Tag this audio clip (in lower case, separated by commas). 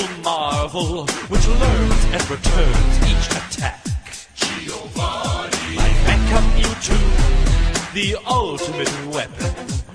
music